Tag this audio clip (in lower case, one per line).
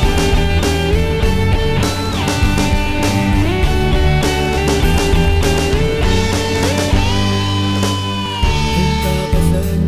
music